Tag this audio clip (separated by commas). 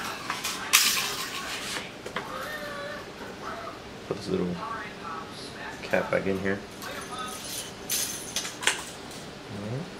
inside a small room, Speech